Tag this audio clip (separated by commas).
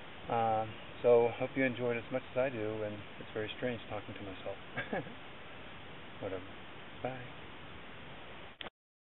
Speech